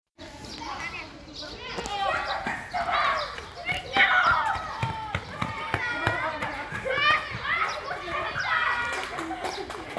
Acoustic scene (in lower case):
park